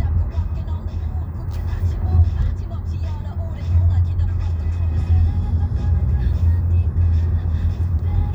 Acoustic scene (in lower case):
car